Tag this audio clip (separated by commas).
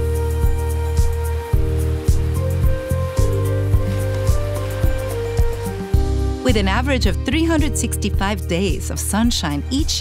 Music, Speech